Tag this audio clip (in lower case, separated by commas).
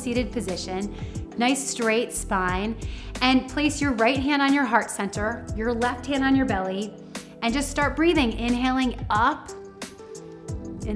music, speech